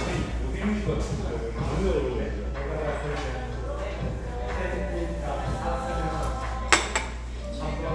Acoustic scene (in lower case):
restaurant